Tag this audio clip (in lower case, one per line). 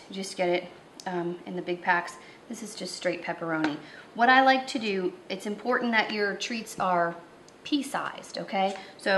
speech